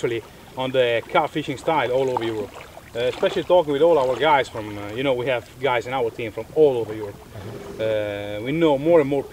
A man speaks quickly while water gurgles